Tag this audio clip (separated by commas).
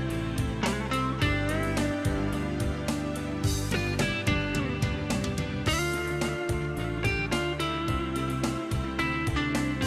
Music